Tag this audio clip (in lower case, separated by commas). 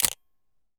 mechanisms, camera